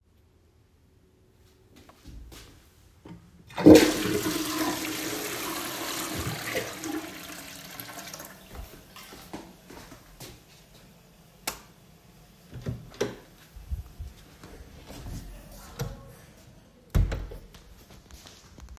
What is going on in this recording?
I flushed the toilet, then I walked to the door, turned the light off from the light switch and finally I opened the door, moved to the other side of it and closed it.